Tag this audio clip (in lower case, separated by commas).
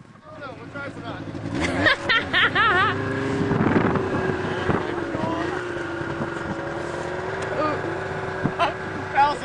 speech